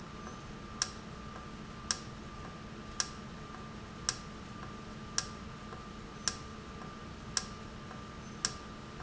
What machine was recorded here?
valve